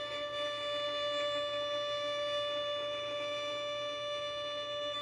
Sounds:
bowed string instrument, musical instrument, music

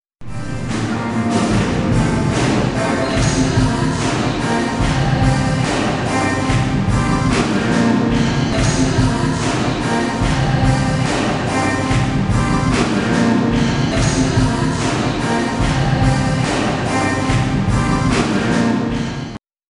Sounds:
singing, human voice

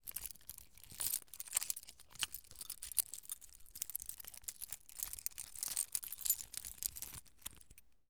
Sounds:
domestic sounds, keys jangling

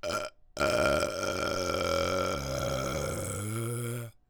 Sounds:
burping

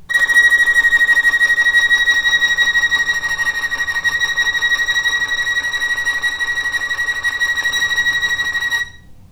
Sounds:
bowed string instrument, musical instrument, music

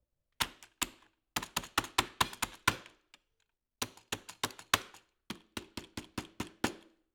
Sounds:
computer keyboard, domestic sounds, typing

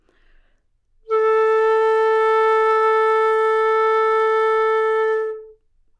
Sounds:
wind instrument, musical instrument, music

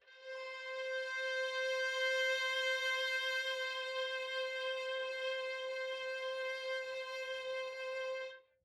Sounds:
music, musical instrument, bowed string instrument

